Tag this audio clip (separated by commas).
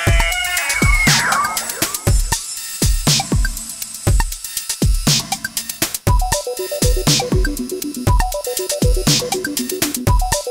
Sampler